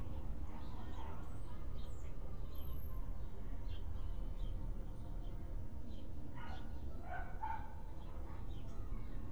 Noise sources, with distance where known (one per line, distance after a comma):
person or small group talking
dog barking or whining